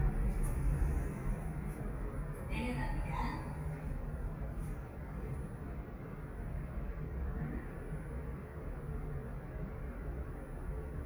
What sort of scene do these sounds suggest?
elevator